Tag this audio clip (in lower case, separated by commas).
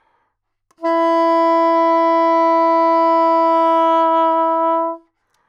music, musical instrument, woodwind instrument